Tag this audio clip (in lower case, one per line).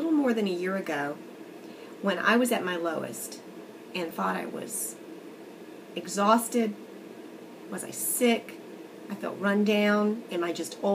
speech